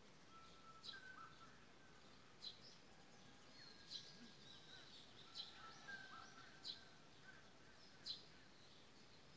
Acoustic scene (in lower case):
park